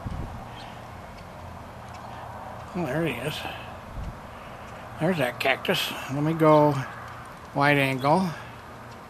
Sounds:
Speech

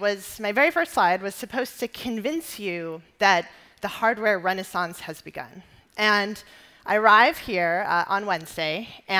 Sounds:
Speech

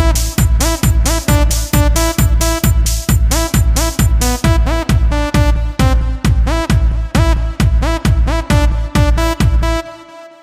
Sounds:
Electronic music, Techno, Music

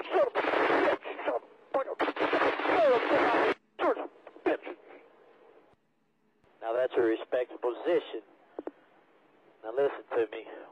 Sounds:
Speech

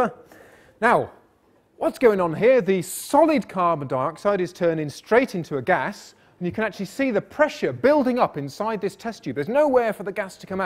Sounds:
Speech

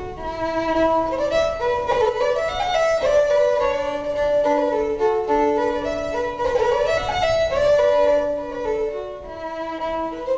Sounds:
Music, fiddle, Musical instrument

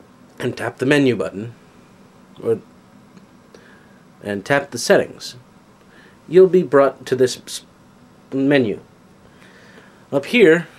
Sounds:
Speech

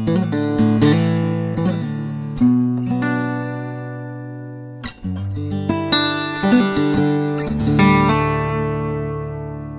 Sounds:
Music

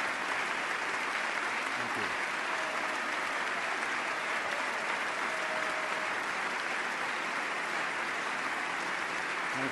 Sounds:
man speaking, Narration, Speech

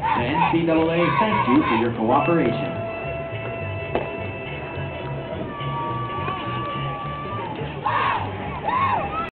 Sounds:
Music, Speech

